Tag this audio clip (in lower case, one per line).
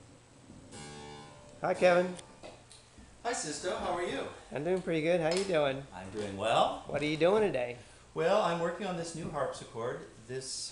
speech